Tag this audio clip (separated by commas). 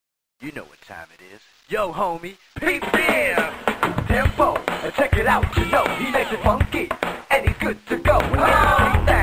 Speech, Music